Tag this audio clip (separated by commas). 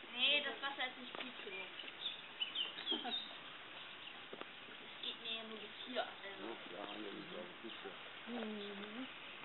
Speech